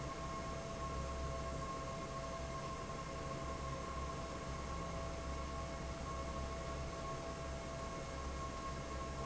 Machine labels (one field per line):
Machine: fan